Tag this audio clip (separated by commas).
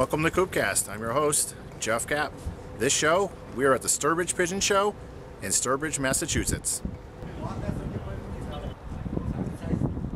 Speech